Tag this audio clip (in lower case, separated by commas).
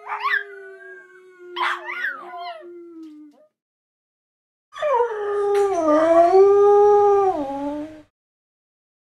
dog howling